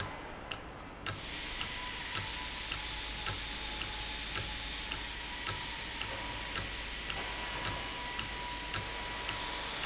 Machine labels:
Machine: valve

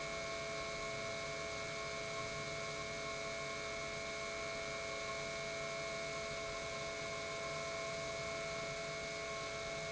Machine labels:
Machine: pump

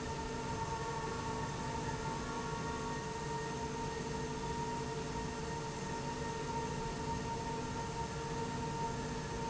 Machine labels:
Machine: slide rail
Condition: normal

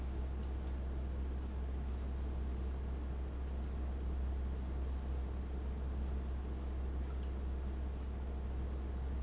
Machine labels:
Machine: fan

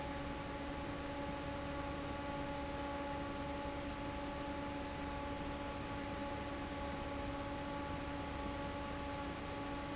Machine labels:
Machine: fan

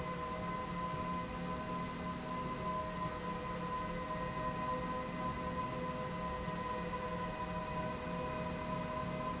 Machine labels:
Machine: slide rail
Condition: normal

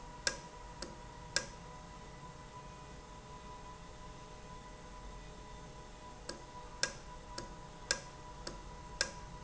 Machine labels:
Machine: valve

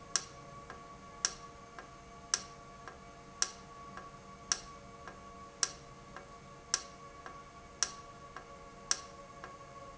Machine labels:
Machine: valve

